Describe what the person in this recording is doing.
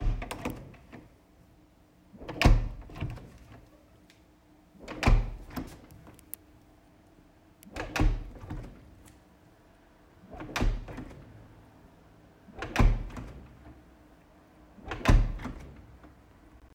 I placed the phone on a table and repeatedly opened and closed the bathroom door.